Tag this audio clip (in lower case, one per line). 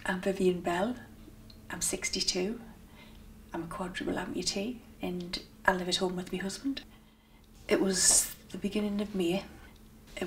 speech